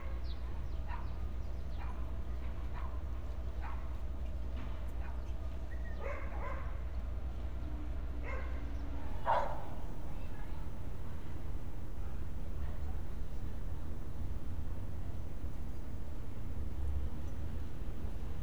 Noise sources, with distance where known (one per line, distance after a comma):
dog barking or whining